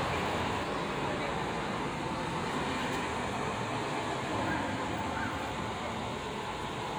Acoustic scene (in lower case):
street